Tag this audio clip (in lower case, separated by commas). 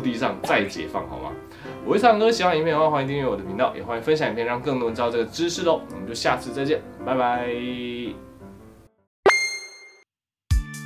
striking pool